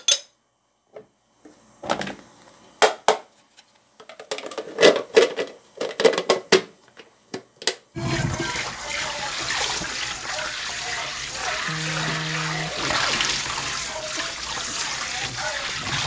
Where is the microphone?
in a kitchen